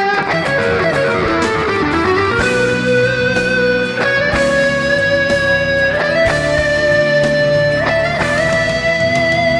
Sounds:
Guitar, Music, Plucked string instrument, Electric guitar, Musical instrument, Strum

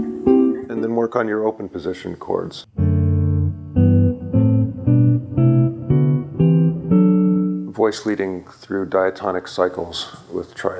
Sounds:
Electric guitar, Electronic tuner, Speech, Strum, Musical instrument, Music, Guitar, Plucked string instrument, inside a small room

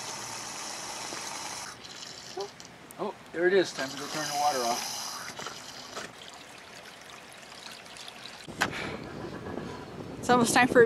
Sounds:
outside, urban or man-made, Speech

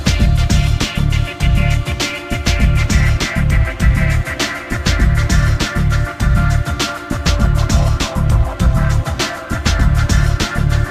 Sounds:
Music

